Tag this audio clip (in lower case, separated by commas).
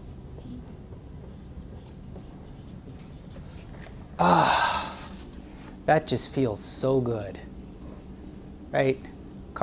speech